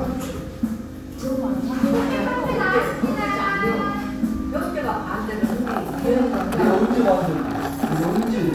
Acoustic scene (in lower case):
cafe